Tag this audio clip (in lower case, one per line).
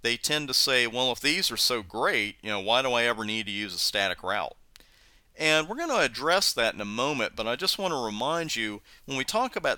speech